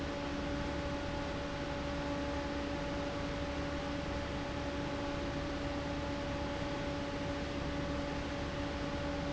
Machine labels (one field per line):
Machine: fan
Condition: abnormal